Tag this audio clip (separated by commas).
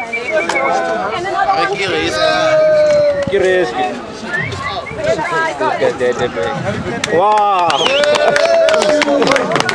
Speech